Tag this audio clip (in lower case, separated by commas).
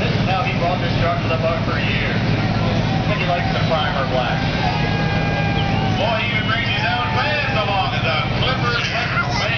speech, vehicle